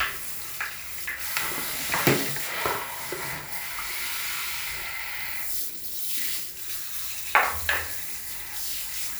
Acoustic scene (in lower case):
restroom